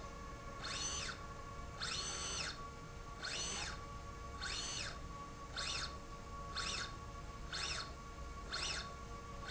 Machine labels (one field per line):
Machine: slide rail